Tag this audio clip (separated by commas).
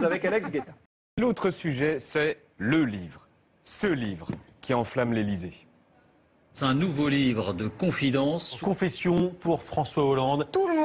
Speech